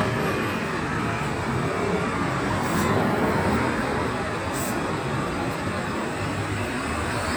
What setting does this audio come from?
street